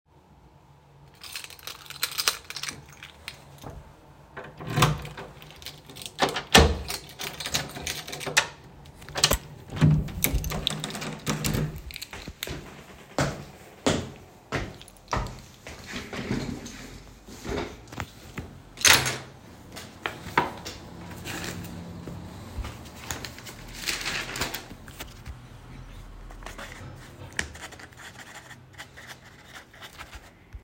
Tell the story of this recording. I enter the office and open the door. I walk to the desk and start writing notes in my notebook.